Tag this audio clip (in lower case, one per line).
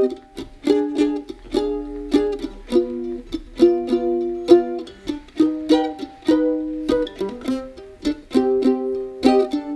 playing mandolin